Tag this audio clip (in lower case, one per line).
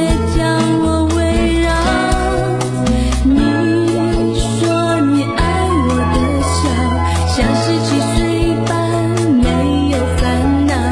music
theme music